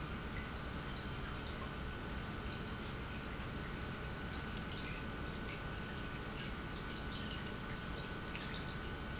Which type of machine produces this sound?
pump